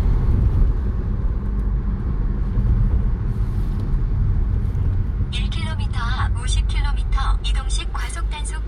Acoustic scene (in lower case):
car